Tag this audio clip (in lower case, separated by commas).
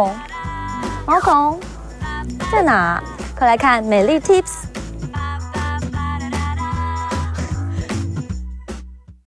music, speech